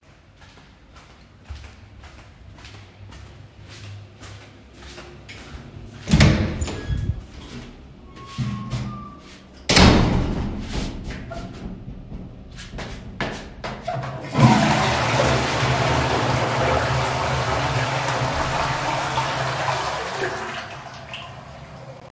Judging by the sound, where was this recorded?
hallway, lavatory